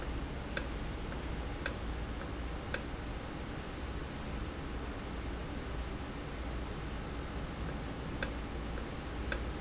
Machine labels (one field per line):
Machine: valve